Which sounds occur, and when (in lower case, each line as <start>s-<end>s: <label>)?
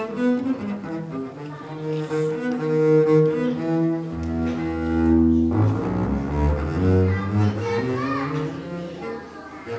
0.0s-9.7s: background noise
0.0s-9.7s: music
7.1s-8.6s: kid speaking
9.0s-9.7s: kid speaking